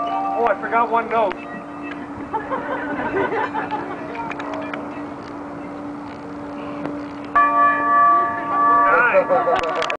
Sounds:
speech
chink

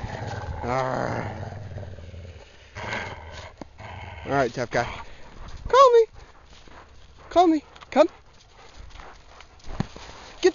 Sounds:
domestic animals
canids
animal
growling
outside, rural or natural
dog
speech

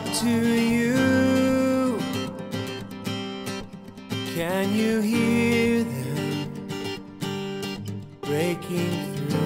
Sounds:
music

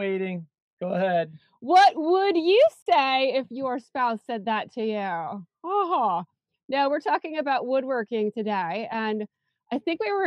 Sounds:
speech

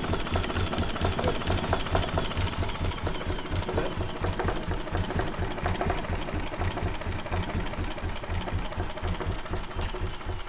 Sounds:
speech

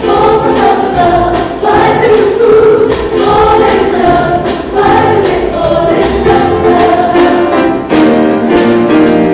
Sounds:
music

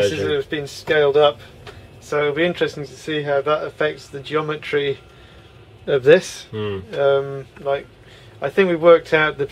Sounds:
speech

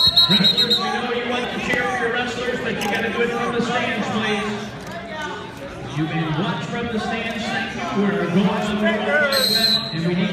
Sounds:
speech

